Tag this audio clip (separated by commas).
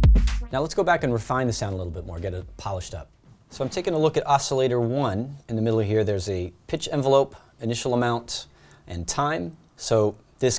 Speech